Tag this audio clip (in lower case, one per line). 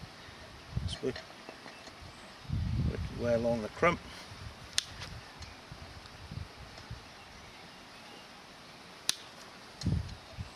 speech
outside, rural or natural